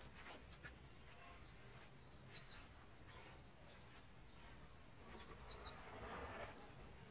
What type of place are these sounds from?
park